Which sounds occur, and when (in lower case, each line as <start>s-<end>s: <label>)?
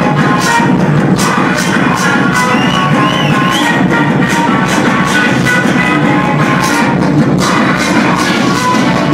0.0s-9.1s: music
2.6s-3.9s: whistling